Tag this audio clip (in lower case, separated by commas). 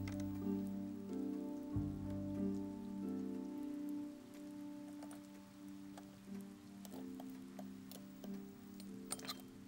music